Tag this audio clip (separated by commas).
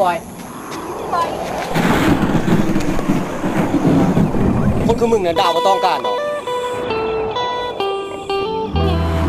Speech, Music